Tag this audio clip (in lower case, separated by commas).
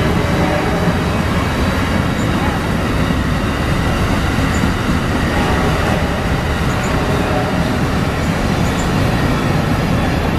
train, rail transport, vehicle